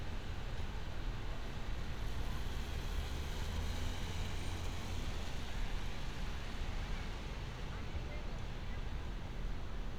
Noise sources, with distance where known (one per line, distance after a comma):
engine of unclear size